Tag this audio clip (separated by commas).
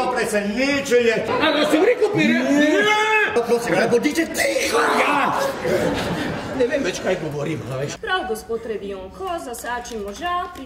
Speech